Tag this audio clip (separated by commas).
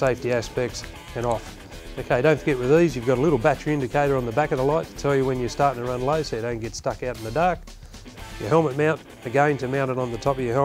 Speech, Music